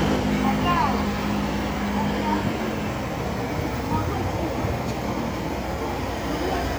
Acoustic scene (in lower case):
street